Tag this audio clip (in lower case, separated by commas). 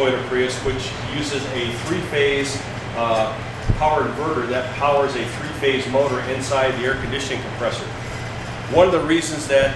speech, air conditioning